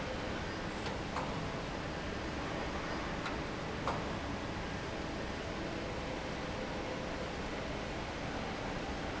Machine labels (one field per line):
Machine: fan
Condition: normal